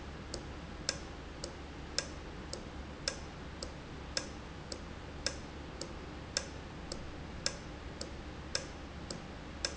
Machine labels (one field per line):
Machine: valve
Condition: normal